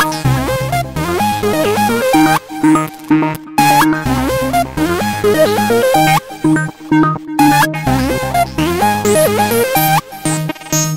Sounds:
music

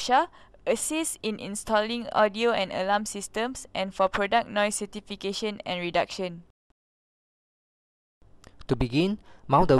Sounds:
speech

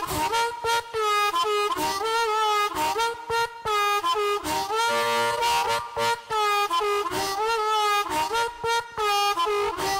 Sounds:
music

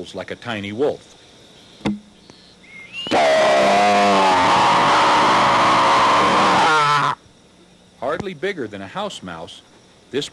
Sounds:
speech

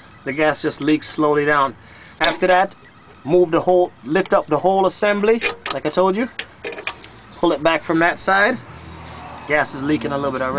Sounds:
speech

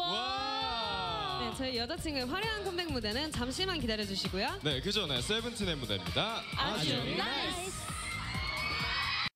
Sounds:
speech, music

